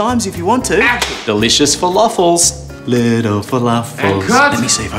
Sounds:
music, speech

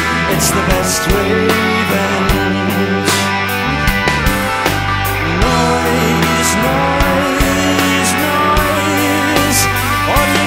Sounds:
music

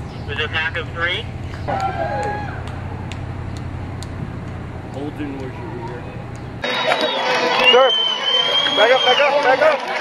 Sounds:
speech, run, outside, urban or man-made

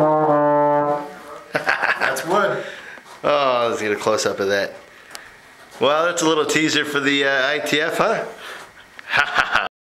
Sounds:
speech, music

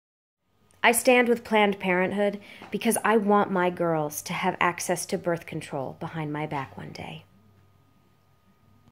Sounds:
speech

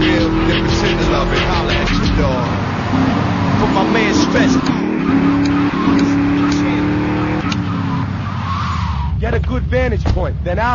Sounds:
speech, music

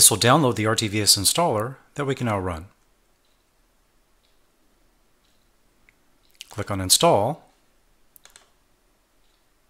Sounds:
speech

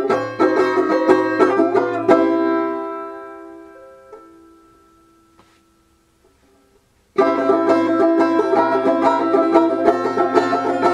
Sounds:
plucked string instrument, inside a small room, music, musical instrument, banjo

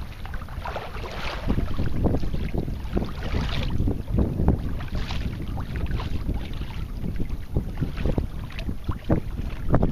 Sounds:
canoe, boat, kayak rowing, vehicle

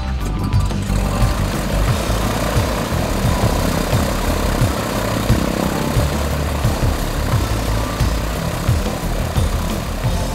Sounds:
aircraft, aircraft engine, music, engine, helicopter, vehicle

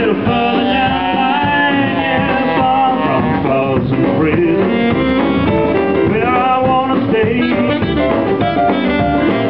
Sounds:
singing, woodwind instrument, saxophone, musical instrument

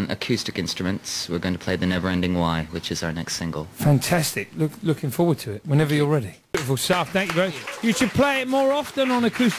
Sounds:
speech

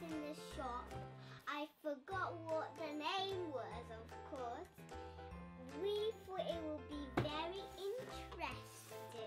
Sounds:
speech, music

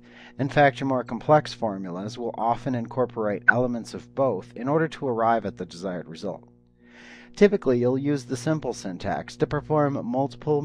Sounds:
speech

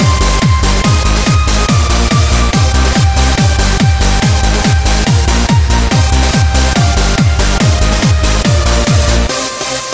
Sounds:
dubstep, music, techno, electronic dance music, exciting music, house music, electronica, pop music, electronic music

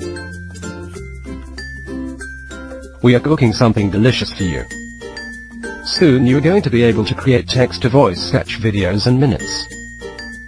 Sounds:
music, speech synthesizer, speech

